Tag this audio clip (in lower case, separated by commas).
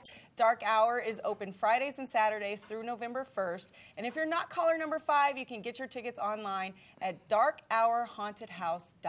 speech, inside a small room